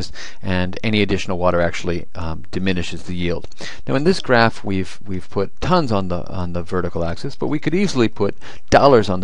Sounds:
Speech

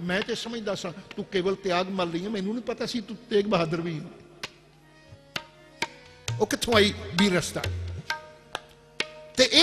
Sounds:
Music, Speech, Tabla

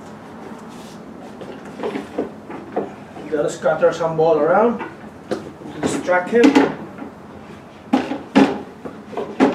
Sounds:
Speech

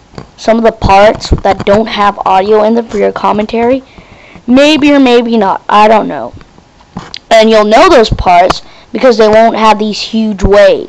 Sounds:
Speech

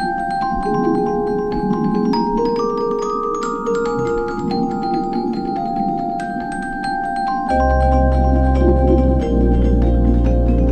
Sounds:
Music

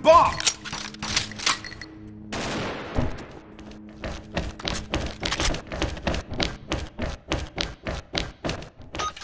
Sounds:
Thunk, Speech, Music

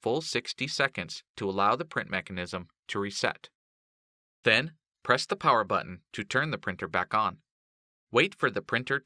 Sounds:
Speech

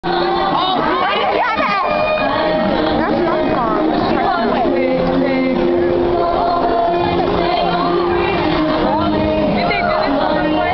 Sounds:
Speech, Music

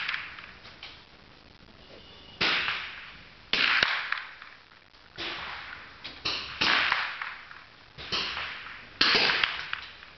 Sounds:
cap gun shooting

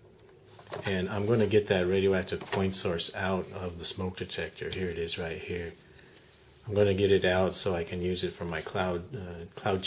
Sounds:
Speech

